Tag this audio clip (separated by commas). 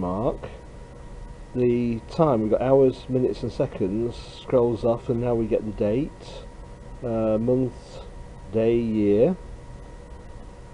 Speech